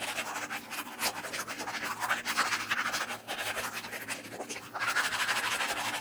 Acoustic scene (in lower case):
restroom